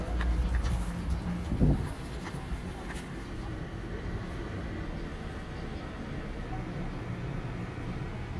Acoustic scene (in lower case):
residential area